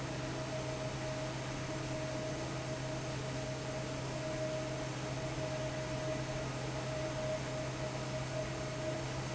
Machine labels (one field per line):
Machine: fan